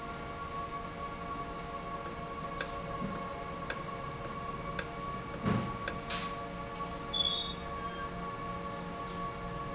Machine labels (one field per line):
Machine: valve